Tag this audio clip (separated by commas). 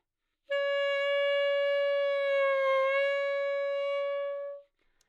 Musical instrument, Wind instrument, Music